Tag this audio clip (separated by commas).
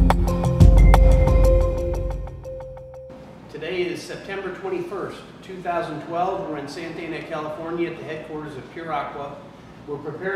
Speech, Music